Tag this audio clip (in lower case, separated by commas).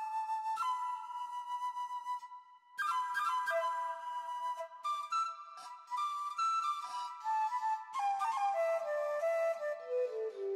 electric guitar, musical instrument, music, guitar